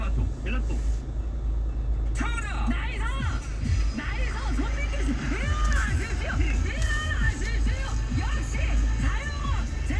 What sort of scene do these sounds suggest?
car